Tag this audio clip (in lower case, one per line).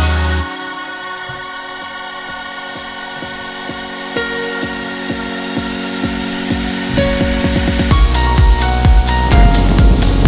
boat
music
vehicle